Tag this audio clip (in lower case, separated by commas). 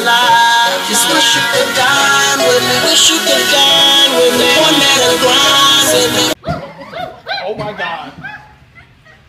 music, speech